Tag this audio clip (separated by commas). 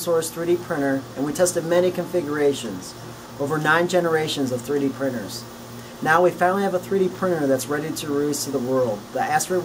Speech